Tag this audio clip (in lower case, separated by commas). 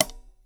percussion, cymbal, hi-hat, music, musical instrument